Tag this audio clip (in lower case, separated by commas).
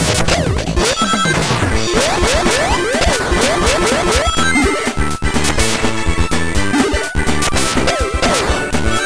techno, music, electronic music